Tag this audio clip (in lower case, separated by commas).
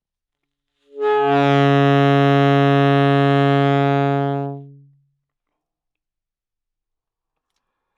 music, musical instrument, wind instrument